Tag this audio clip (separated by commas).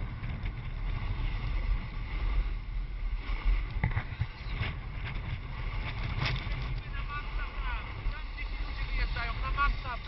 Speech